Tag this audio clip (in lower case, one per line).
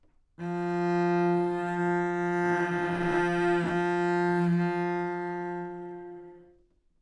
music
bowed string instrument
musical instrument